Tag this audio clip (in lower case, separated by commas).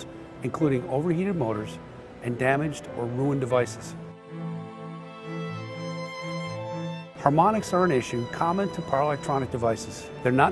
speech, music